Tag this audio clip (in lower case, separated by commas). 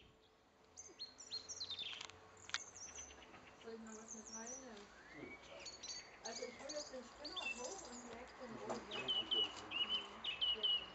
bird, bird call, bird chirping, tweet